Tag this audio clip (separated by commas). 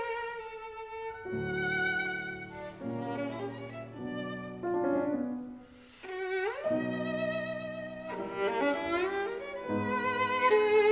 fiddle, Music